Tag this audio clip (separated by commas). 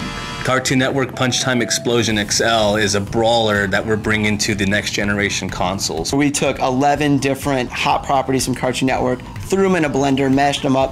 Speech, Music